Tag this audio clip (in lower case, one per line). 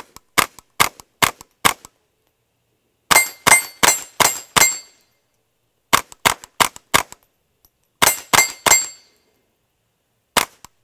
outside, rural or natural
cap gun
cap gun shooting